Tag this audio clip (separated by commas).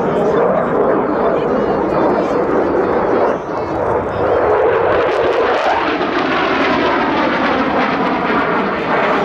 airplane flyby